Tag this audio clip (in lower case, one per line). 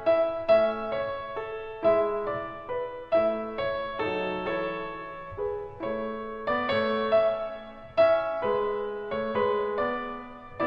music